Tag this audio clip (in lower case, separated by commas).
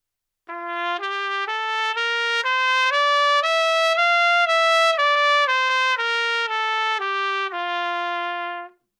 music, trumpet, musical instrument, brass instrument